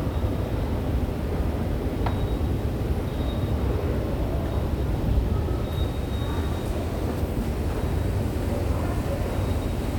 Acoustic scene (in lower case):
subway station